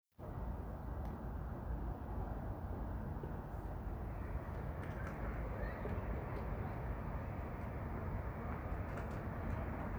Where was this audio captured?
in a residential area